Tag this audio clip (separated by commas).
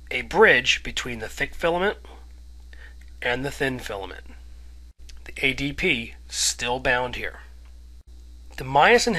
Narration